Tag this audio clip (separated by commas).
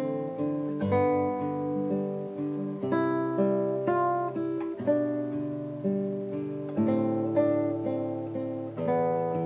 Strum, Acoustic guitar, Musical instrument, Music, Plucked string instrument, Guitar